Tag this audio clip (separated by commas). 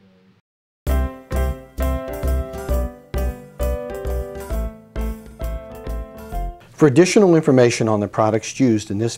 Music, Speech